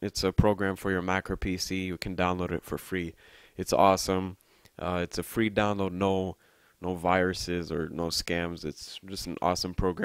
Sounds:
speech

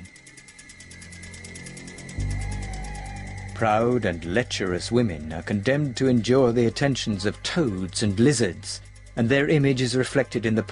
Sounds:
speech

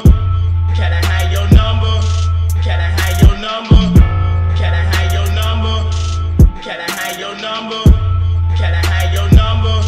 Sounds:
theme music, music

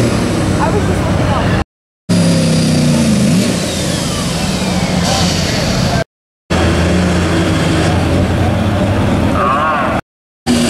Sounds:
vehicle, speech

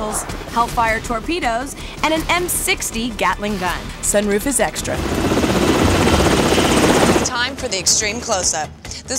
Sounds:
helicopter, speech, music

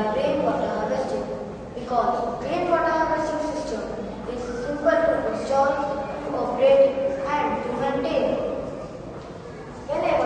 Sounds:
speech

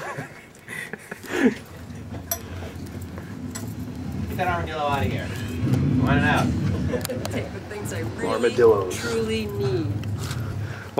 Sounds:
speech, chink

